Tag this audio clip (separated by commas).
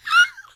Squeak